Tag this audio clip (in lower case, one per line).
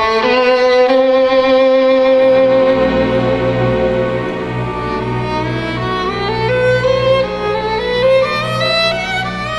violin
musical instrument
music